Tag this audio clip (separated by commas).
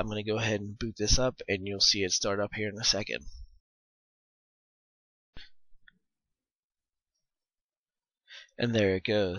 Speech